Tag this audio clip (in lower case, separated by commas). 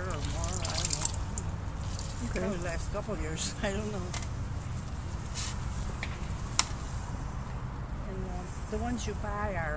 speech, outside, rural or natural